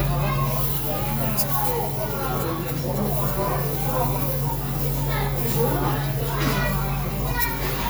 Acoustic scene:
restaurant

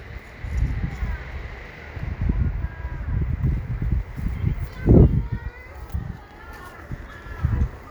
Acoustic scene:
residential area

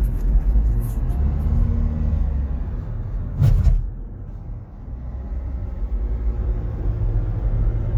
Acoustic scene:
car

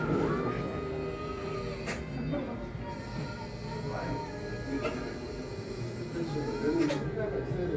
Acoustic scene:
cafe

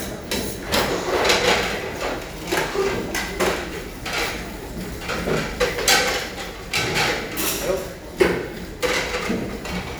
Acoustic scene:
restaurant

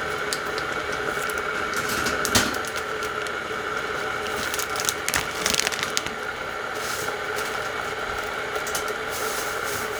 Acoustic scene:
kitchen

